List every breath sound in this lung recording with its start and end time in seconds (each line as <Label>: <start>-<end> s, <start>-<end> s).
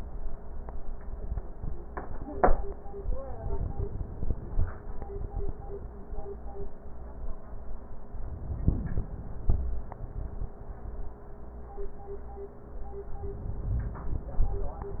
Inhalation: 3.46-4.70 s
Crackles: 3.46-4.70 s